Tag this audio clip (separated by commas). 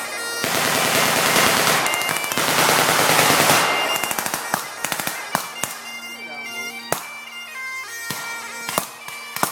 woodwind instrument, Bagpipes